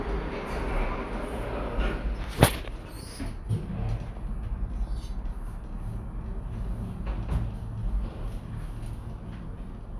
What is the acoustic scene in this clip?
elevator